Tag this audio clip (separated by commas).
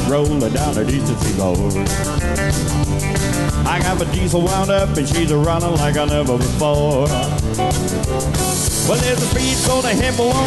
Country, Music